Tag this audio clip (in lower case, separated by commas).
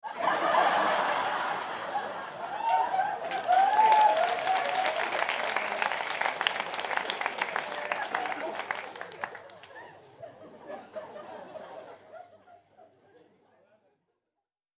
human voice, laughter